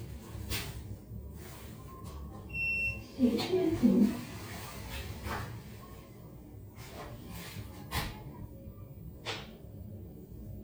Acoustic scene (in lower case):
elevator